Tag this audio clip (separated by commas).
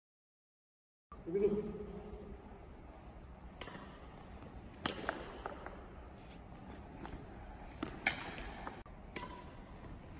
playing badminton